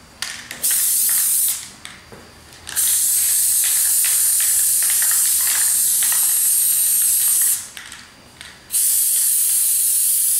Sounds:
inside a small room

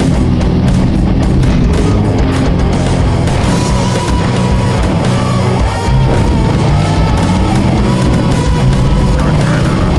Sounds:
Music, Vehicle

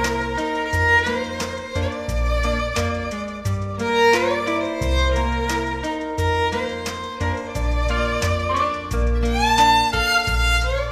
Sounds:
Musical instrument, Music, fiddle

